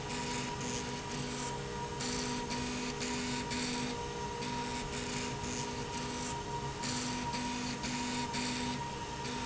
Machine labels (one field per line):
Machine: slide rail